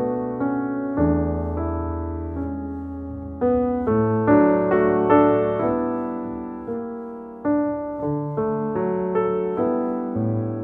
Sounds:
Music

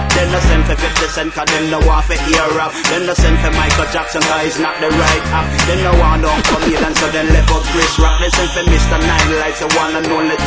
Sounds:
Music

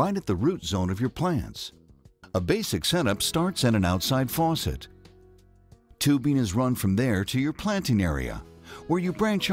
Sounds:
Speech, Music

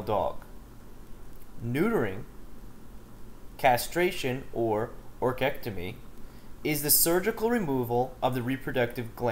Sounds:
Speech

